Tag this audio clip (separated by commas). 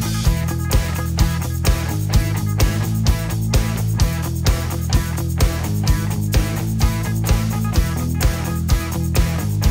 Music